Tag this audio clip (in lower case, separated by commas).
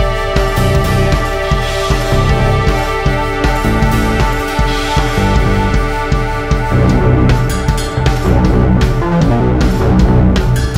playing bass drum